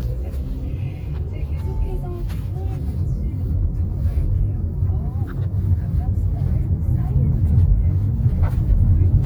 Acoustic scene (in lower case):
car